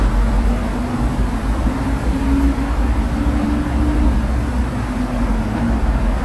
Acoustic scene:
street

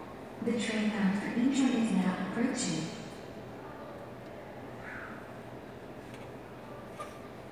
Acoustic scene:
subway station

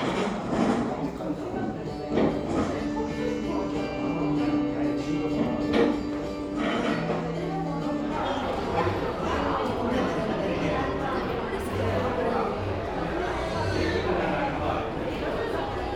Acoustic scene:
cafe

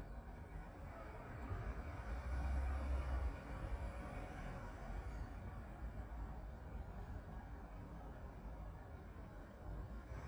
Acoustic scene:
residential area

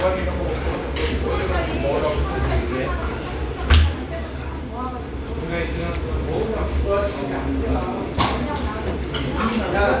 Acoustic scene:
restaurant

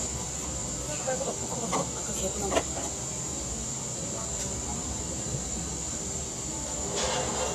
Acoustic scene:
cafe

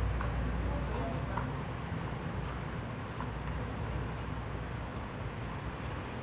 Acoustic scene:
residential area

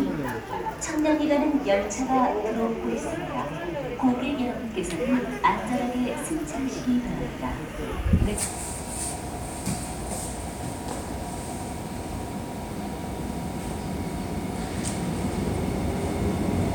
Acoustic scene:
subway station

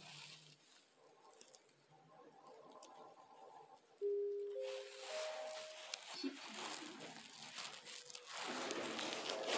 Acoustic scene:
elevator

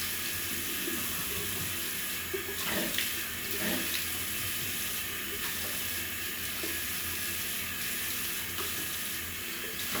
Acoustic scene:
restroom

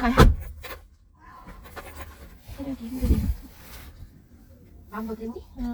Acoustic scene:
car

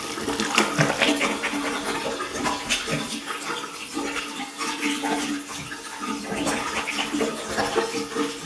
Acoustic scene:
restroom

